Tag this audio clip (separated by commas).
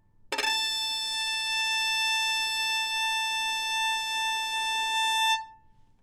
Music, Musical instrument, Bowed string instrument